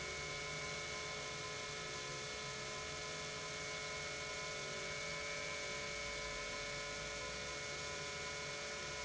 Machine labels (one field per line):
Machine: pump